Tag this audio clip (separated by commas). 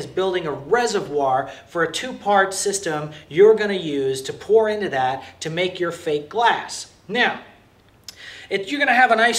inside a small room, Speech